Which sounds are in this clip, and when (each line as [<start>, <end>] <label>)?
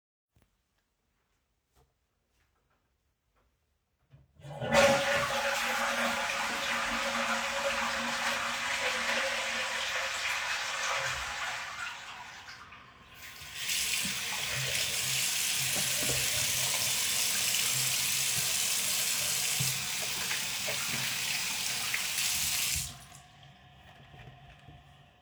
[4.41, 13.39] toilet flushing
[13.09, 23.00] running water
[22.86, 25.22] toilet flushing